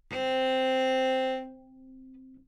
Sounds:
musical instrument
bowed string instrument
music

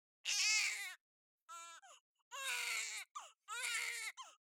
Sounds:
crying
human voice

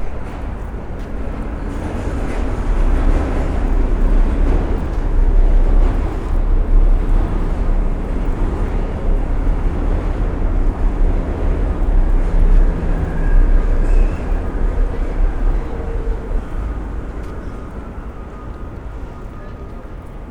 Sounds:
vehicle
rail transport
metro

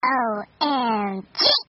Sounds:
human voice
speech

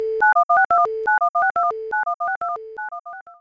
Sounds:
alarm
telephone

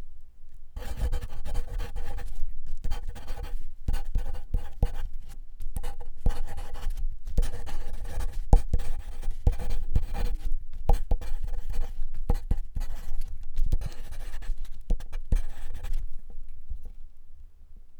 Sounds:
writing
home sounds

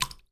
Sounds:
liquid
water
drip

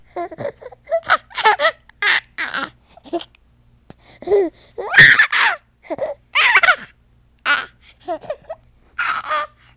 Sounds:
laughter
human voice

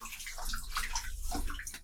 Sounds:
liquid

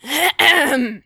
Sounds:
human voice
respiratory sounds
cough

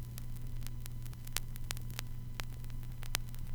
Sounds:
crackle

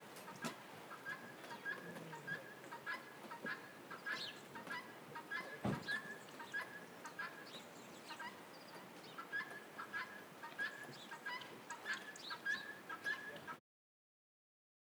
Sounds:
tweet
bird
bird vocalization
animal
wild animals

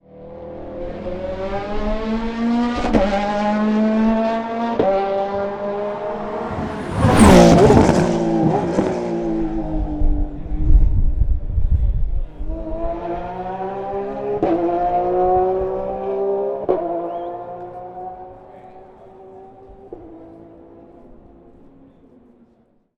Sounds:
engine
race car
vroom
car
vehicle
motor vehicle (road)

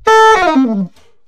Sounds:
music
wind instrument
musical instrument

